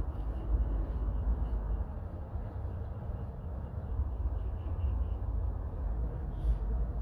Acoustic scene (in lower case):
park